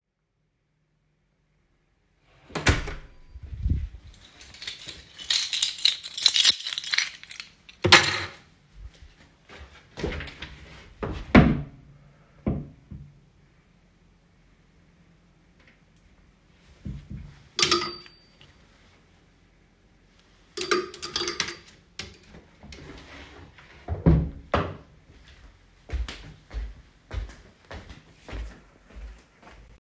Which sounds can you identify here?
door, keys, wardrobe or drawer, footsteps